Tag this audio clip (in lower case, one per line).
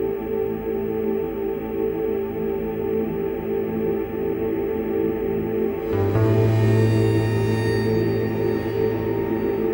theme music
music